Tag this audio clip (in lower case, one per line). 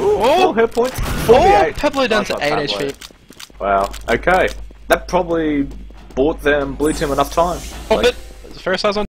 speech